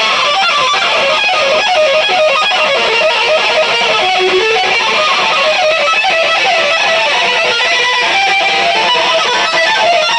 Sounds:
Guitar, Electric guitar, Music, Plucked string instrument, Strum, Musical instrument, Bass guitar

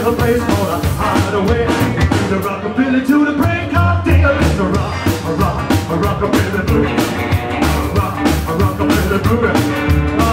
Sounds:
Singing, Rock and roll, Rimshot, Music

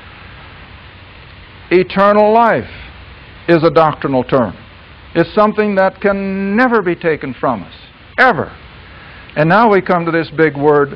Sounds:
White noise, Speech

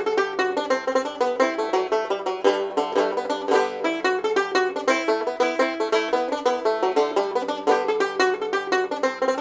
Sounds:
Music, playing banjo, Banjo

